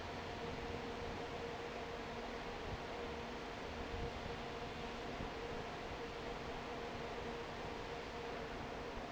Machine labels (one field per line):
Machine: fan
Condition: normal